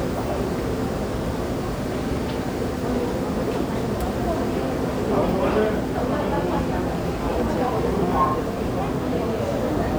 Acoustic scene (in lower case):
subway station